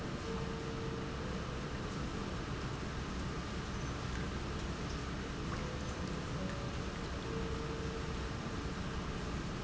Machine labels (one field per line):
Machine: pump